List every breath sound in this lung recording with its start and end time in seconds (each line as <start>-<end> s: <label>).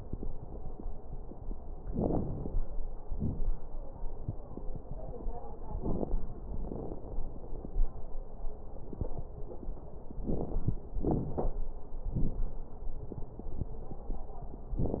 1.81-2.61 s: inhalation
1.81-2.61 s: crackles
3.08-3.57 s: exhalation
3.08-3.57 s: crackles
5.66-6.21 s: inhalation
5.66-6.21 s: crackles
6.50-7.05 s: exhalation
6.50-7.05 s: crackles
10.21-10.84 s: inhalation
10.21-10.84 s: crackles
10.98-11.62 s: exhalation
10.98-11.62 s: crackles